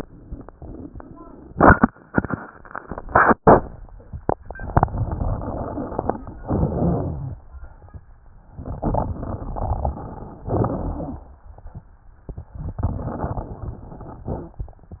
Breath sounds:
4.72-6.28 s: inhalation
4.72-6.28 s: crackles
6.41-7.40 s: exhalation
6.41-7.40 s: crackles
8.58-10.38 s: inhalation
8.58-10.38 s: crackles
10.51-11.50 s: exhalation
10.51-11.50 s: crackles
12.60-14.40 s: inhalation
12.60-14.40 s: crackles

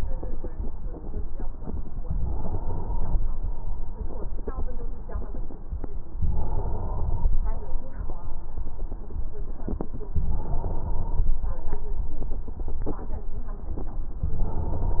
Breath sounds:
2.21-3.20 s: inhalation
6.28-7.27 s: inhalation
10.31-11.30 s: inhalation
14.28-15.00 s: inhalation

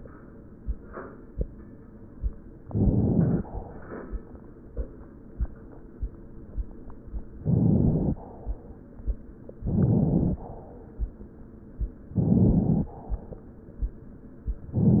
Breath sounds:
2.64-3.44 s: inhalation
7.44-8.21 s: inhalation
9.66-10.43 s: inhalation
12.14-12.91 s: inhalation

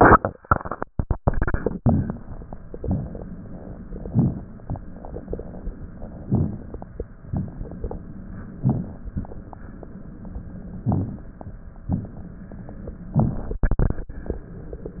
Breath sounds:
2.66-3.90 s: inhalation
3.88-4.92 s: exhalation
6.21-7.22 s: inhalation
7.23-8.40 s: exhalation
8.54-9.55 s: inhalation
10.83-11.75 s: inhalation
11.76-12.86 s: exhalation
13.10-13.60 s: inhalation

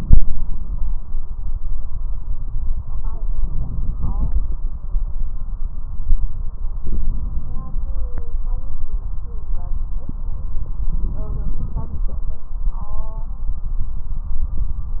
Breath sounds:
3.38-4.64 s: inhalation
6.84-7.89 s: inhalation
6.85-7.89 s: crackles
10.97-12.49 s: inhalation

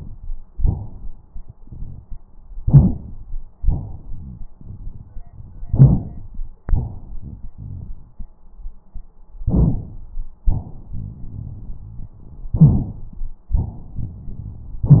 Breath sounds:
0.59-1.31 s: inhalation
2.64-3.42 s: inhalation
3.59-4.48 s: exhalation
4.09-4.48 s: rhonchi
5.67-6.45 s: inhalation
6.66-8.27 s: exhalation
9.46-10.19 s: inhalation
12.57-13.36 s: inhalation

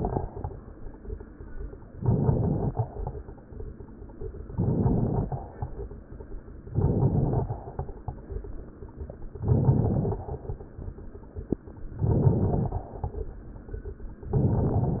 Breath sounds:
1.92-2.90 s: inhalation
1.92-2.90 s: crackles
4.50-5.49 s: inhalation
4.50-5.49 s: crackles
6.70-7.69 s: inhalation
6.70-7.69 s: crackles
9.45-10.27 s: inhalation
9.45-10.27 s: crackles
11.99-12.81 s: inhalation
11.99-12.81 s: crackles
14.27-15.00 s: inhalation
14.27-15.00 s: crackles

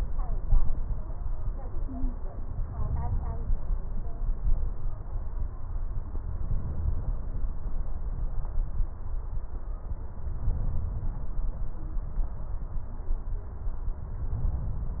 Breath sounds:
2.47-3.71 s: inhalation
10.40-11.35 s: inhalation
14.28-15.00 s: inhalation

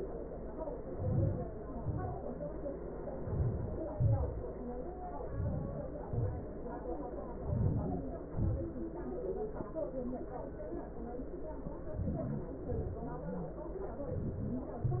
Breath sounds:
0.63-1.33 s: inhalation
1.29-1.84 s: exhalation
3.00-3.81 s: inhalation
3.78-4.50 s: exhalation
5.14-6.09 s: inhalation
6.07-6.58 s: exhalation
7.13-8.05 s: inhalation
8.12-8.86 s: exhalation
11.65-12.66 s: inhalation
12.73-13.36 s: exhalation
14.08-14.54 s: inhalation
14.63-15.00 s: exhalation

